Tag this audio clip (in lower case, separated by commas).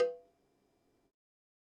bell, cowbell